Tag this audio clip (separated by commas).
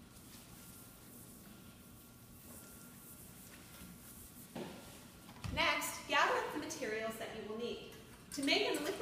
Speech